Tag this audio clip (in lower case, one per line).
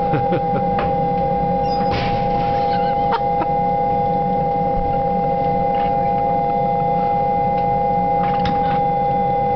aircraft